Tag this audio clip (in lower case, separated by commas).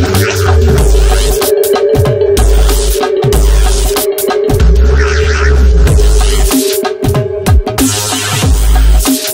music, dubstep, electronic music